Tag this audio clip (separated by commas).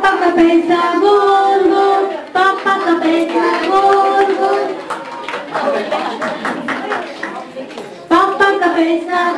Singing, Speech